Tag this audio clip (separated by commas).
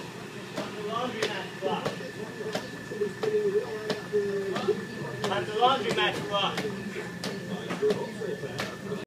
Speech